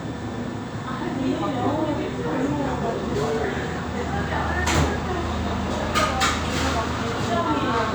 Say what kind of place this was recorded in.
cafe